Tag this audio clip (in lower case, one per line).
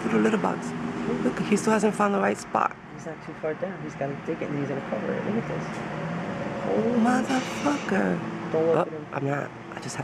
speech